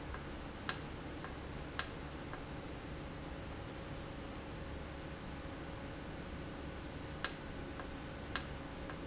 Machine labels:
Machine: valve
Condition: normal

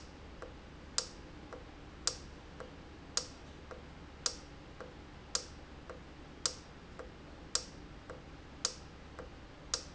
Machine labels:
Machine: valve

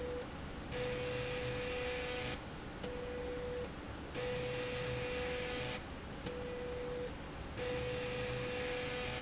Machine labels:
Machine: slide rail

